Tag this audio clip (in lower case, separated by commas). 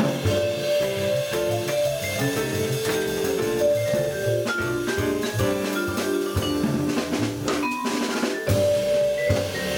vibraphone, drum, playing vibraphone, music, musical instrument